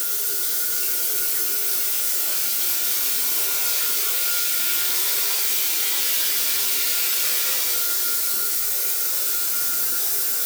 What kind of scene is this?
restroom